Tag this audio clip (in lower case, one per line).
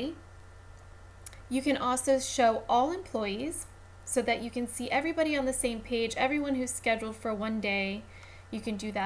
speech